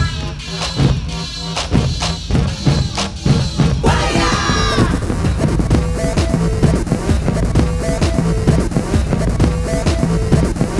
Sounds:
Sampler, Electronic music, Music

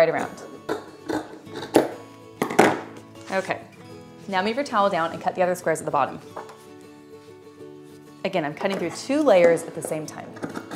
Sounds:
Speech, Music, inside a small room

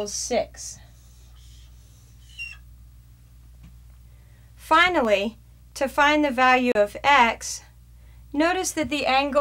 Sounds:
Speech

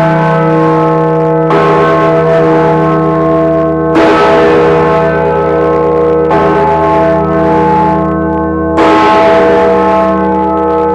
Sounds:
Music

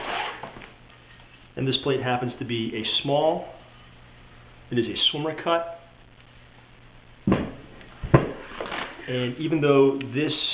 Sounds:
Speech

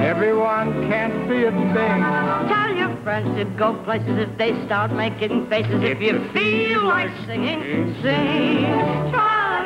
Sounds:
Female singing, Male singing, Music

